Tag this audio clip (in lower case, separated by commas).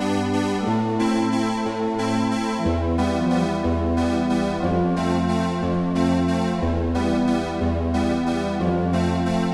music